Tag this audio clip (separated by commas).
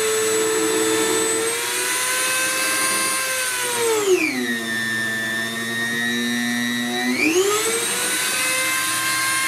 Drill, Tools